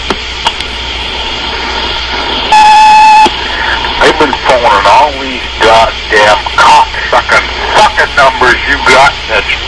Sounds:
Speech

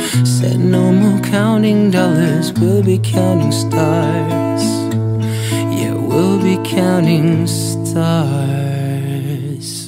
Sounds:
Music

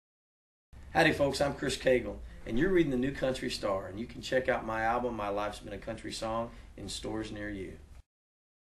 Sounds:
Speech

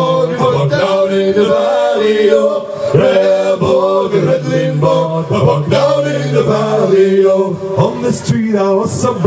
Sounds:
Chant

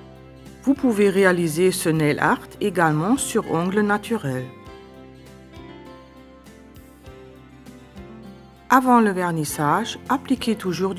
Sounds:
Music, Speech

